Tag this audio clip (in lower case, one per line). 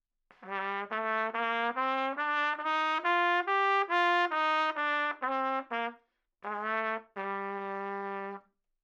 music
trumpet
musical instrument
brass instrument